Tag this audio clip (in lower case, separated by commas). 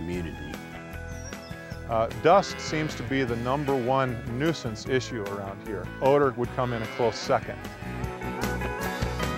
bovinae, livestock, moo